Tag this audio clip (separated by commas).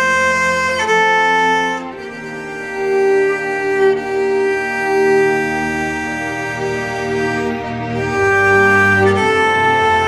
Musical instrument, fiddle, Music